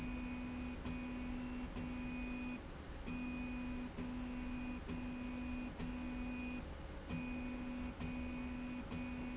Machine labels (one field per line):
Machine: slide rail